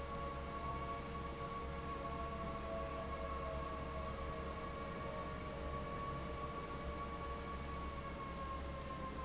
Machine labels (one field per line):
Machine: fan